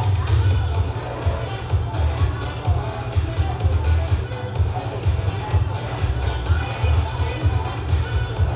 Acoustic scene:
cafe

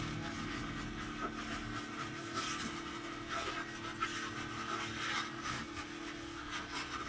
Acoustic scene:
kitchen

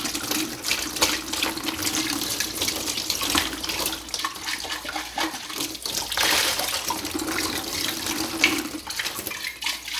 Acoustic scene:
kitchen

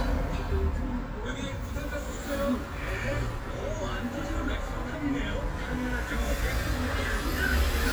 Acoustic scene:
bus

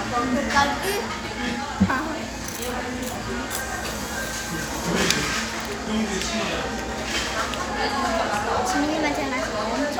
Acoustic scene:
cafe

